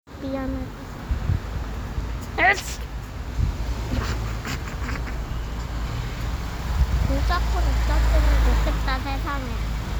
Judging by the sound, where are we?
on a street